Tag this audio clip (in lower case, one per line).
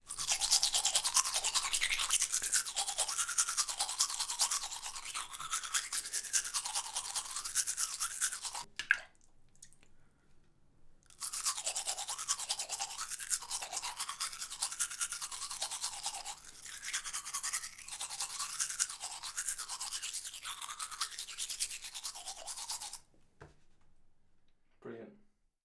domestic sounds